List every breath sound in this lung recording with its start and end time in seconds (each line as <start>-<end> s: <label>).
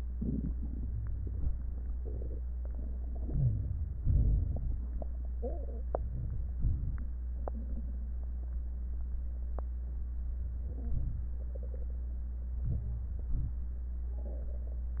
0.08-0.54 s: crackles
0.08-0.55 s: inhalation
0.56-1.50 s: exhalation
0.56-1.52 s: crackles
3.25-3.98 s: crackles
3.25-4.01 s: inhalation
4.00-4.78 s: crackles
4.03-4.79 s: exhalation
5.90-6.55 s: crackles
5.92-6.58 s: inhalation
6.57-7.25 s: crackles
6.58-7.24 s: exhalation
10.24-10.89 s: crackles
10.29-10.91 s: inhalation
10.90-11.55 s: crackles
10.91-11.54 s: exhalation
12.53-13.32 s: crackles
12.54-13.34 s: inhalation
13.36-14.01 s: exhalation
13.36-14.02 s: crackles